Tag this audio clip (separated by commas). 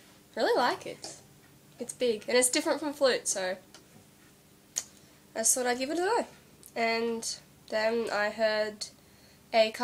Speech